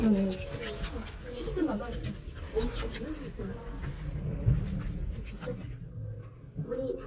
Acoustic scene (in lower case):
elevator